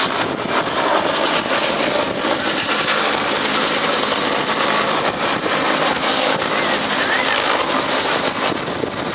A loud scraping noise, followed by a person yelling